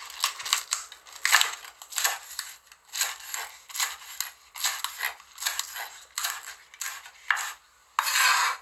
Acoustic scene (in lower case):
kitchen